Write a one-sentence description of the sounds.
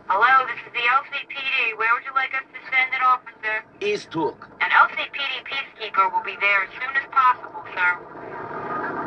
Women speaking over a phone or radio and male voice responding